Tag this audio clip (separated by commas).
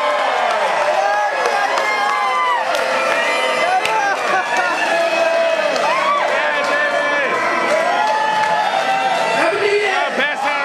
Crowd, Cheering